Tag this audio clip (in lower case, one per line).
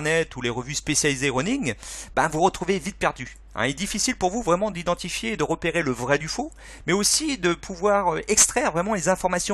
speech